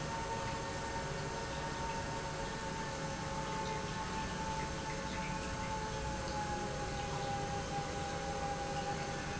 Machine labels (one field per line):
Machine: pump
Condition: normal